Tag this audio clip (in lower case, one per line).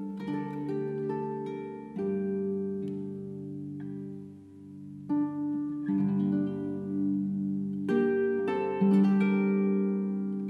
pizzicato
harp